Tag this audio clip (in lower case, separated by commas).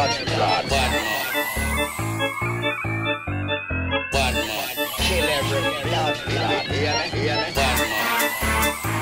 music